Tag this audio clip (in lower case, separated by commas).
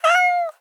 meow, animal, cat, domestic animals